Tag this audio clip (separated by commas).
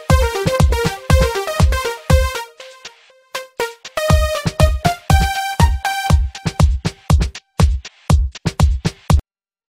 Music